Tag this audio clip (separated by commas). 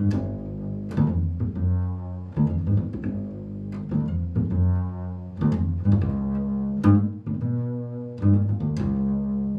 Cello, Music, Musical instrument